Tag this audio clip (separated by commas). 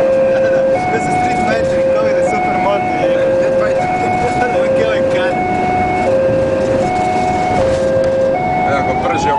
Siren, Emergency vehicle, Speech, Vehicle